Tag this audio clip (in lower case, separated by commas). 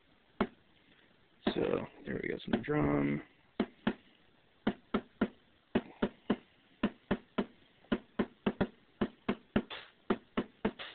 drum machine, speech, music